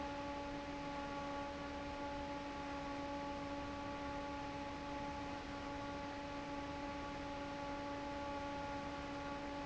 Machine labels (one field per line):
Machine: fan